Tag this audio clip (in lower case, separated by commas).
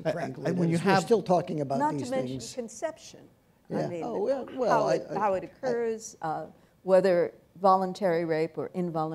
speech, inside a large room or hall